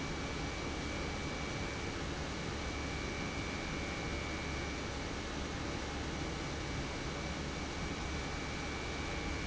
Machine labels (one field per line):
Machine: pump